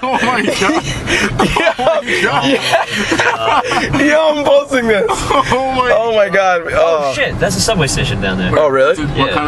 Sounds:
Car passing by, Vehicle, Speech, Car

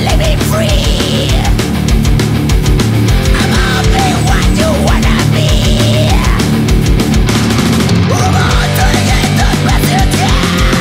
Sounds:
Music

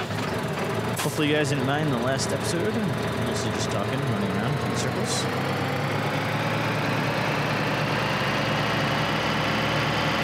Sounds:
Speech

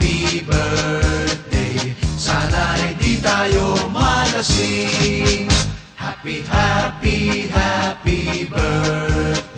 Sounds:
Music, Reggae

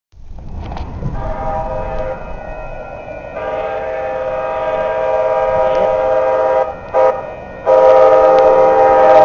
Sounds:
Train, Speech, train horning, Train horn, Vehicle, Train whistle

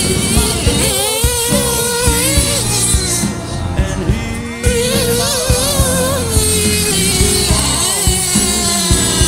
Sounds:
Music, Soundtrack music

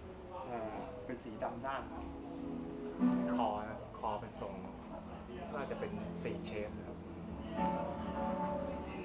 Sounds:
Plucked string instrument, Strum, Music, Speech, Guitar, Musical instrument

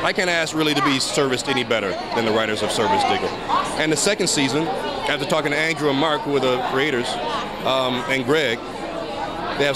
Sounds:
Speech

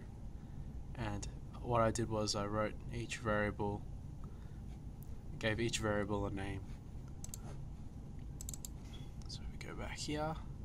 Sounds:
Speech

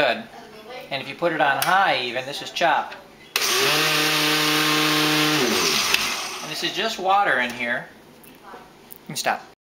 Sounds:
Blender

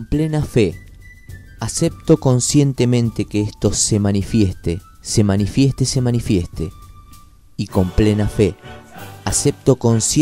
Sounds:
Music, Speech

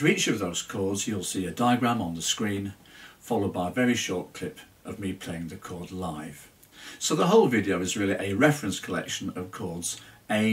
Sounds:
Speech

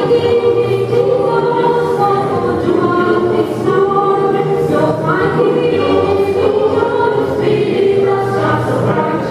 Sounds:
Choir, Christmas music, Christian music, Music

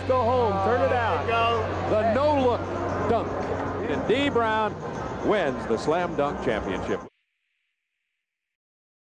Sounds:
Speech

